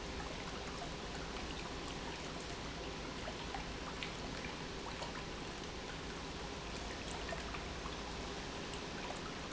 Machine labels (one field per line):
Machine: pump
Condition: normal